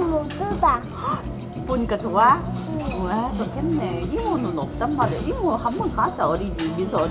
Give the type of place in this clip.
restaurant